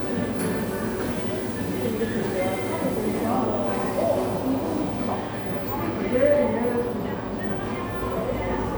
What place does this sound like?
cafe